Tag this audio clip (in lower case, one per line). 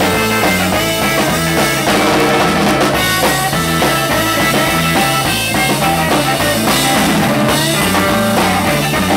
music